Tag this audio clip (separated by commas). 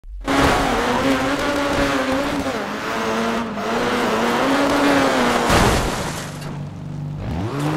Car, Vehicle